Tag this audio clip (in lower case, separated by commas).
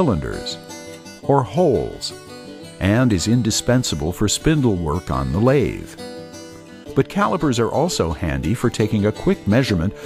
music, speech